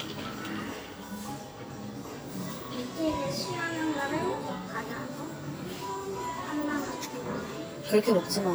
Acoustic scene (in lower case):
cafe